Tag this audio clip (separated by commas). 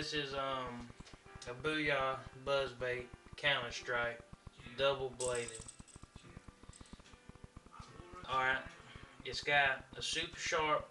Speech